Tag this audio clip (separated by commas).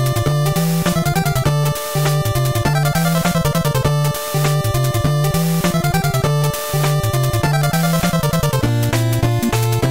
Music